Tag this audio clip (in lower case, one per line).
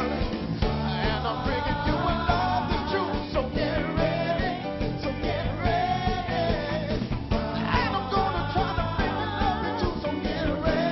music